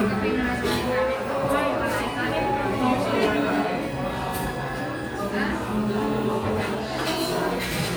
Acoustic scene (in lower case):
crowded indoor space